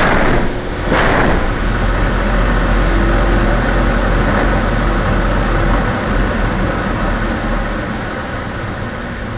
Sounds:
Wind noise (microphone)

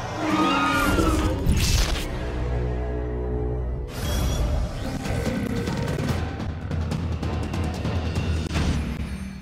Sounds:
Music

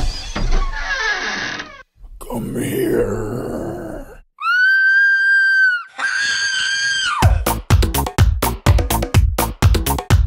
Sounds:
Speech, Music

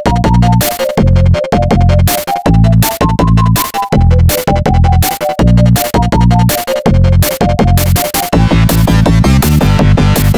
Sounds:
Music

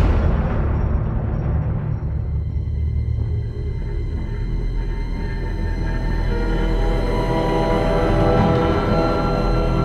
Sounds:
Video game music, Soundtrack music, Music

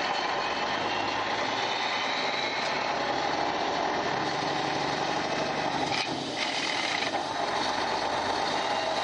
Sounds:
Mechanisms

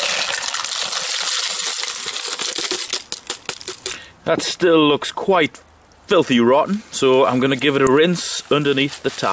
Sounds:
Coin (dropping)

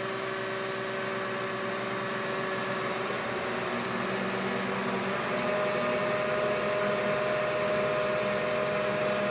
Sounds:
Vehicle

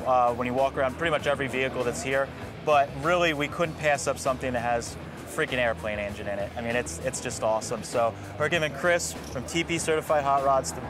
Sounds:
Music, Speech

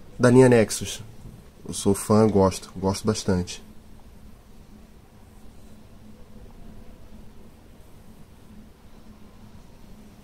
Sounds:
Speech

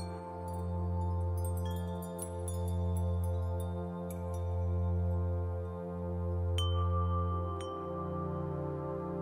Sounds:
Glass

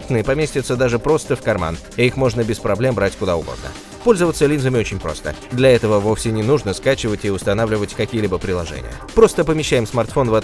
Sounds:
Speech, Music

